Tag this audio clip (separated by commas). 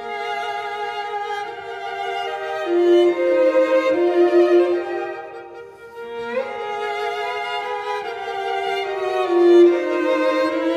Orchestra, fiddle, String section, Music, Cello